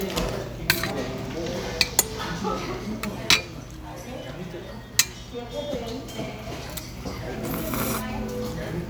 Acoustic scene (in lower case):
restaurant